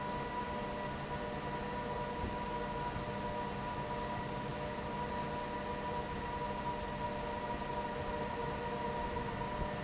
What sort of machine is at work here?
fan